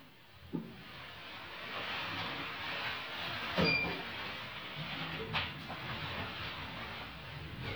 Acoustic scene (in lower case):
elevator